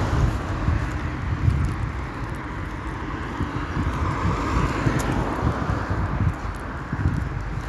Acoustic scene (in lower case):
street